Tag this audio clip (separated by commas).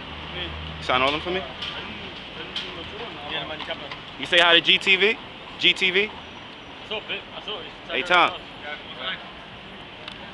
Speech